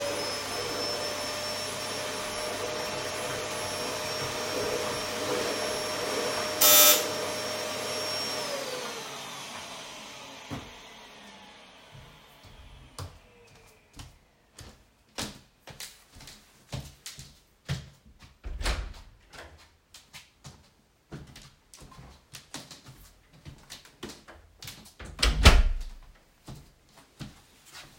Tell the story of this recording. I am vacuuming the floor when the doorbell suddenly rings. I turn off the vacuum cleaner, walk to the door, and open it.